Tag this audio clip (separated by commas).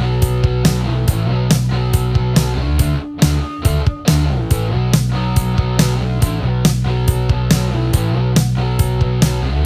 Music, Grunge, Drum kit